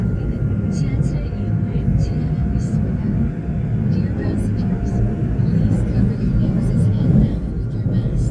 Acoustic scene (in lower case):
subway train